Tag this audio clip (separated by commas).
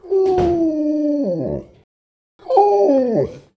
Dog, pets, Animal